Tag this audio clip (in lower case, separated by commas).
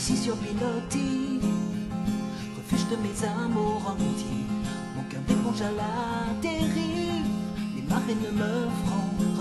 music